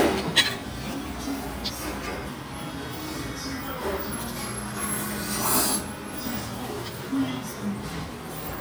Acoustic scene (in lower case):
restaurant